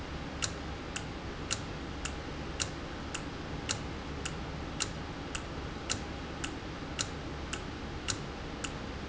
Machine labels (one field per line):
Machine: valve